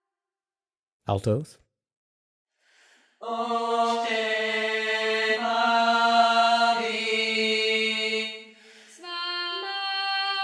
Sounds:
Choir, Chant

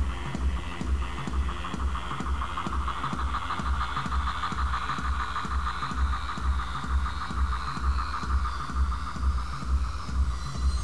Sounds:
Music, Sound effect

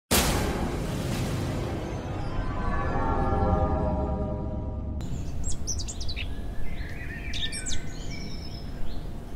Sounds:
bird song, Music, outside, rural or natural

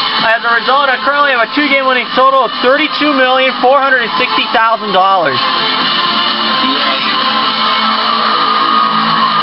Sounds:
Music, Speech

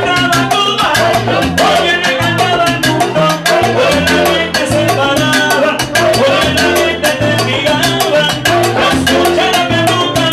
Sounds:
playing timbales

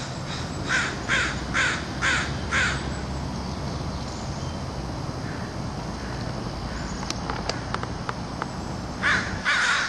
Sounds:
Crow, Caw, Animal, crow cawing

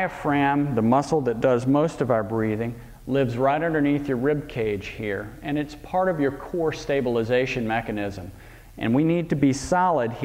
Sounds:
Speech

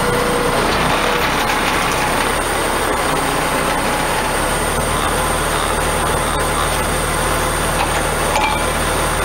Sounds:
Vehicle, Truck

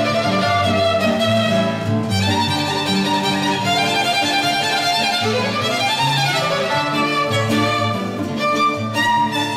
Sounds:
Musical instrument, fiddle, Music

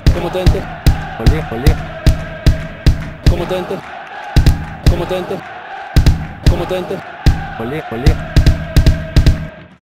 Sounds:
Male singing, Speech, Music

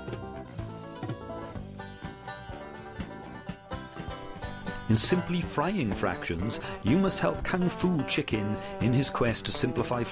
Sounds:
Music, Speech

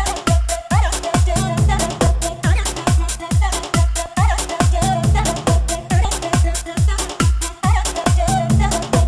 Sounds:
Sound effect, Music

